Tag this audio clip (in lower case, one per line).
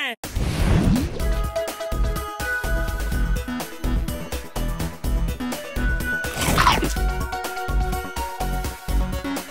music